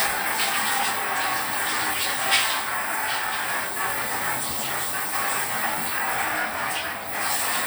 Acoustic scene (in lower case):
restroom